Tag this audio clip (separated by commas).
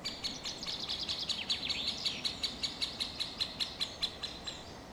bird song, Animal, Bird, Wild animals